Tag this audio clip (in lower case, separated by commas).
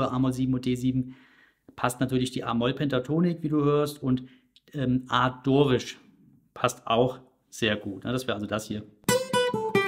metronome